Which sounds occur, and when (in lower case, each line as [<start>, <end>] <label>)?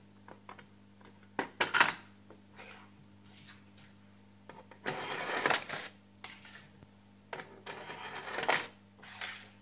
[0.00, 9.61] background noise
[0.28, 0.70] generic impact sounds
[0.96, 1.14] generic impact sounds
[1.37, 1.74] generic impact sounds
[1.57, 1.95] coin (dropping)
[2.23, 2.42] generic impact sounds
[2.56, 2.92] surface contact
[3.28, 3.57] surface contact
[3.73, 3.98] generic impact sounds
[4.43, 4.79] generic impact sounds
[4.85, 5.93] surface contact
[5.38, 5.63] coin (dropping)
[6.15, 6.36] generic impact sounds
[6.25, 6.64] surface contact
[7.30, 7.48] generic impact sounds
[7.70, 8.48] surface contact
[8.28, 8.66] coin (dropping)
[9.04, 9.53] surface contact
[9.15, 9.32] generic impact sounds